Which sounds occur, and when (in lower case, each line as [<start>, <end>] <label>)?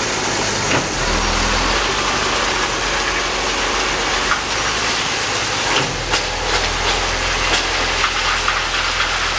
[0.00, 9.35] vehicle
[0.65, 0.79] generic impact sounds
[4.23, 4.36] generic impact sounds
[5.62, 5.87] generic impact sounds
[6.07, 6.17] generic impact sounds
[6.42, 7.00] generic impact sounds
[7.43, 7.58] generic impact sounds
[7.95, 9.06] generic impact sounds